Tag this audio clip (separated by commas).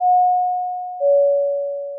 Door, Alarm, home sounds, Doorbell